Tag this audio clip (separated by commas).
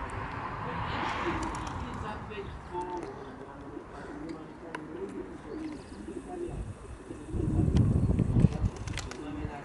Speech, Bird